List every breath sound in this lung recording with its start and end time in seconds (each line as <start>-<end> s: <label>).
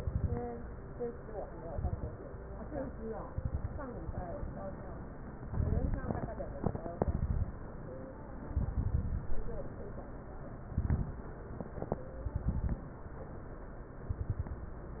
0.00-0.41 s: exhalation
0.00-0.41 s: crackles
1.67-2.18 s: exhalation
1.67-2.18 s: crackles
3.27-3.85 s: exhalation
3.27-3.85 s: crackles
5.49-6.29 s: exhalation
5.49-6.29 s: crackles
6.96-7.58 s: exhalation
6.96-7.58 s: crackles
8.49-9.20 s: exhalation
8.49-9.20 s: crackles
10.71-11.29 s: exhalation
10.71-11.29 s: crackles
12.27-12.85 s: exhalation
12.27-12.85 s: crackles
14.10-14.67 s: exhalation
14.10-14.67 s: crackles